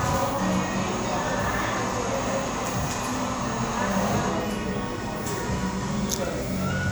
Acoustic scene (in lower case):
cafe